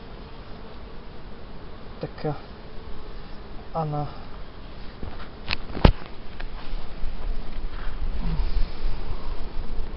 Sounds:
bee or wasp, Fly, Insect

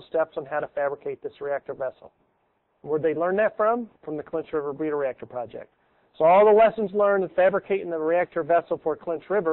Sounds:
Speech

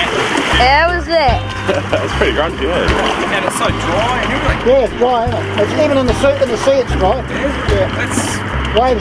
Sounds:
Vehicle, outside, rural or natural, Boat, Speech, Music

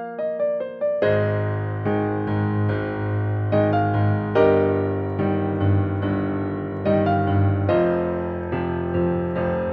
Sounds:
Music, Soundtrack music

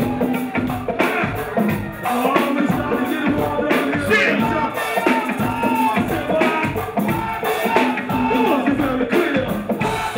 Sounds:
Music

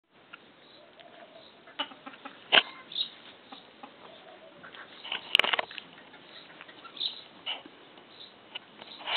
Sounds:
Animal, livestock

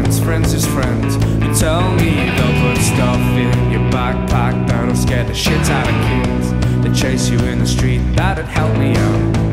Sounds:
Music

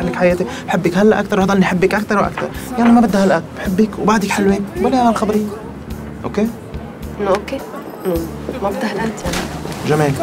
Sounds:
Music, Speech

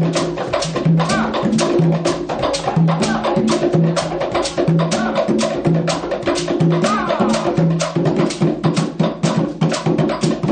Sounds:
inside a large room or hall, Music, Drum roll

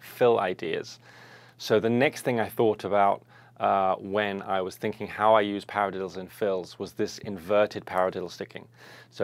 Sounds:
Speech

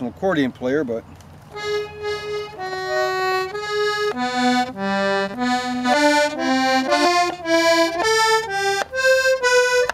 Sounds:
Music, Speech

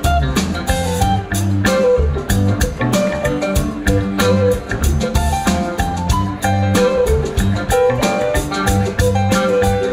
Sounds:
Orchestra, Music

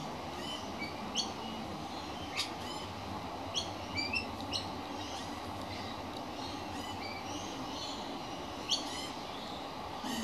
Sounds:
magpie calling

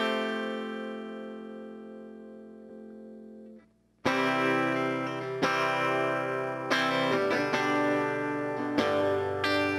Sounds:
Music, Electric guitar

